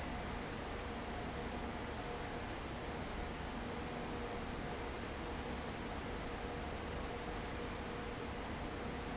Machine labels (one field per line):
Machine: fan